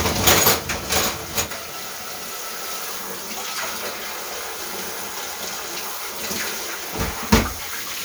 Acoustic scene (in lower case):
kitchen